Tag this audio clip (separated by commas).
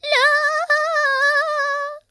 Singing, Female singing, Human voice